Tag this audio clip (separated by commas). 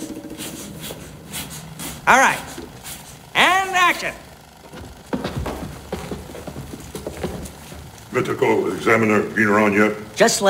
Speech